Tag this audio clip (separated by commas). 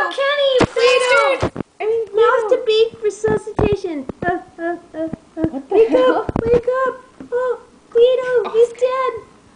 Speech